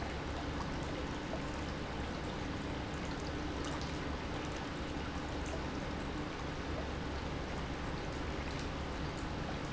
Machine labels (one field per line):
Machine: pump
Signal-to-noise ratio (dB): -6 dB